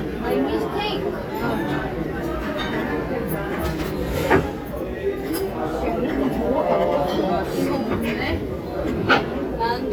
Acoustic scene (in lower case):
crowded indoor space